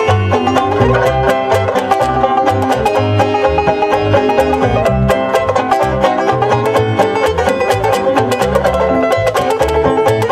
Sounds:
Musical instrument, Banjo, playing banjo, Music

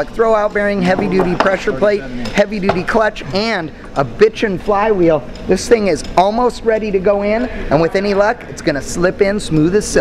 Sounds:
Speech

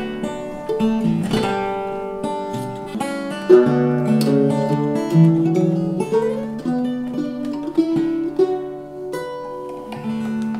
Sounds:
Guitar, Plucked string instrument, Music, Musical instrument

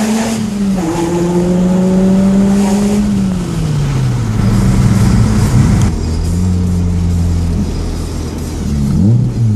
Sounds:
Flap

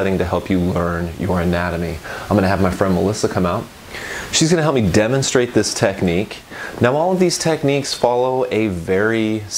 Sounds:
Speech

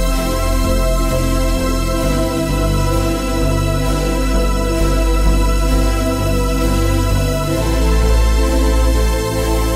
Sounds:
Music, Theme music

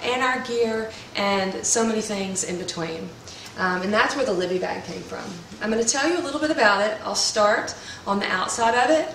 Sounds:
Speech

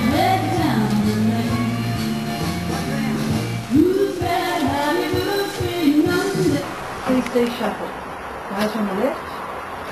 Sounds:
Speech, Music

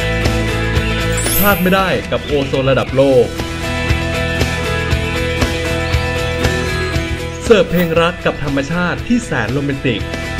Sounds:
Speech, Music

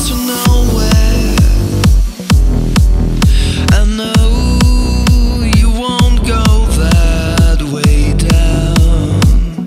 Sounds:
Music

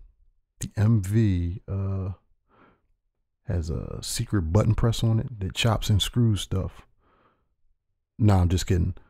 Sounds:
Speech

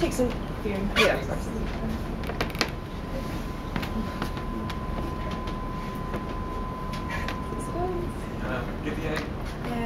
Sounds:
Creak

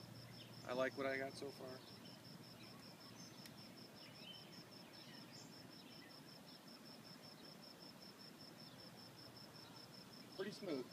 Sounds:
outside, rural or natural, Speech

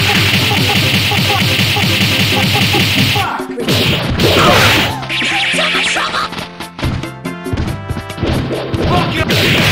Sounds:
Music, Sound effect

